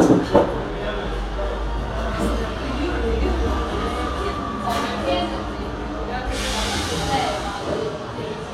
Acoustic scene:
cafe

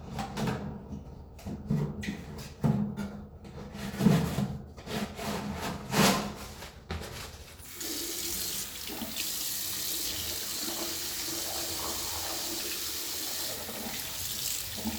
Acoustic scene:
restroom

